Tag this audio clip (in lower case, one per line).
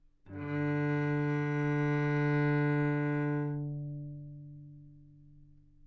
music
musical instrument
bowed string instrument